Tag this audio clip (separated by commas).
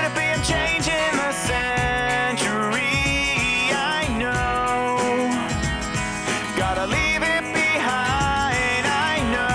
Music